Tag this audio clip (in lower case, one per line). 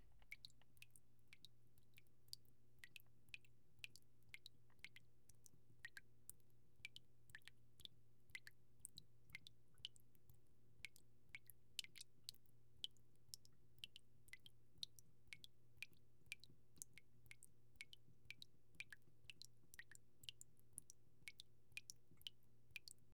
drip
liquid